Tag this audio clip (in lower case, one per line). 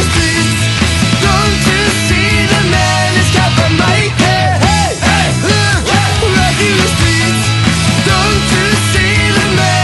music